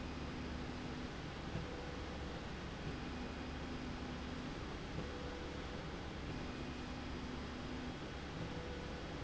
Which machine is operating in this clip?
slide rail